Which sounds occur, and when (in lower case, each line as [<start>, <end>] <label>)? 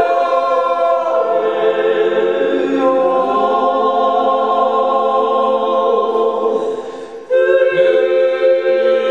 [0.00, 6.57] choir
[6.43, 7.27] breathing
[7.18, 9.10] choir